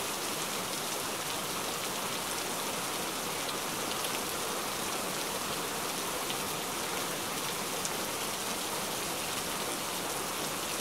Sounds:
Rain on surface, Rain

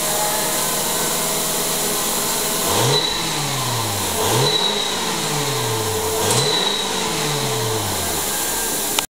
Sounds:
Car, Accelerating, Vehicle

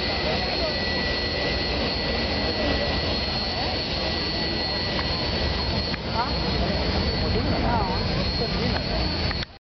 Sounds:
Vehicle, Speech

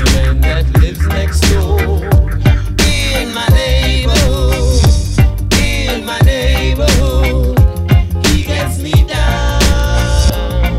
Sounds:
Music

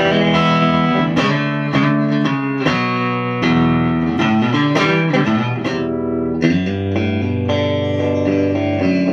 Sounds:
Music

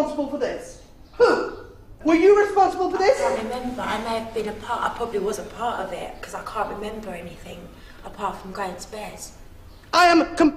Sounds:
woman speaking

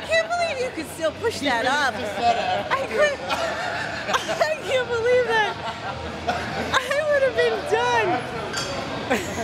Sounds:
Speech

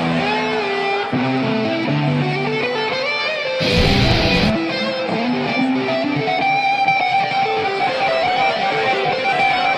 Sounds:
Music, Electric guitar

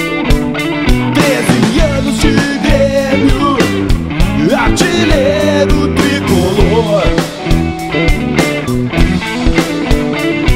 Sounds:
Ska, Music

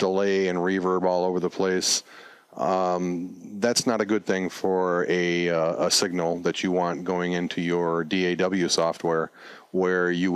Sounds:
Speech

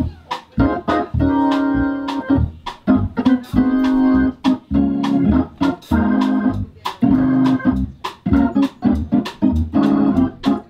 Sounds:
playing hammond organ, Music, Musical instrument, Piano, Keyboard (musical), Hammond organ

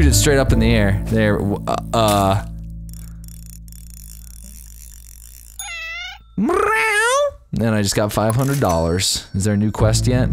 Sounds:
Music, Speech

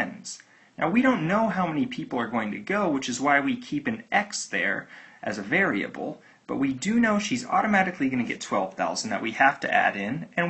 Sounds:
inside a small room, Speech

